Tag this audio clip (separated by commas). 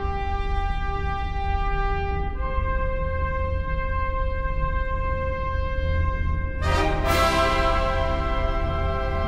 Music